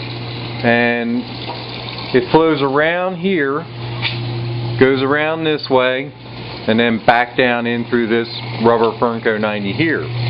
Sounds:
Speech

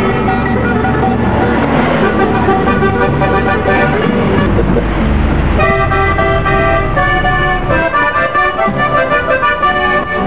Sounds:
outside, rural or natural, Vehicle, Music

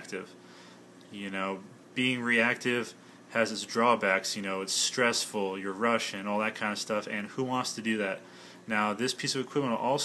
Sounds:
Speech

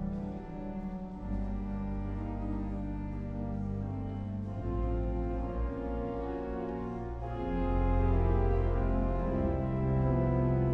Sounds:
Musical instrument, Keyboard (musical), Music

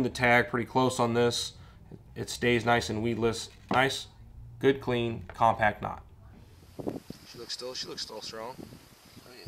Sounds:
Speech

